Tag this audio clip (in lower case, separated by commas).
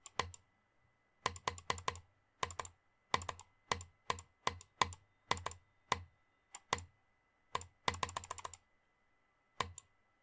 mouse clicking